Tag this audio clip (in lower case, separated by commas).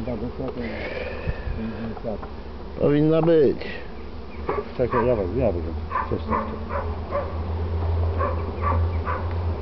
animal, speech